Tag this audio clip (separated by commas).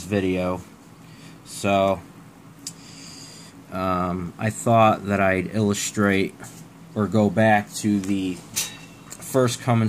Speech